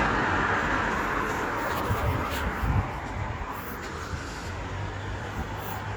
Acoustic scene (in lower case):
street